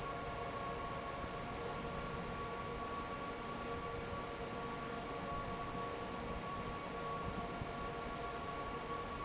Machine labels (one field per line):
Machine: fan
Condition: normal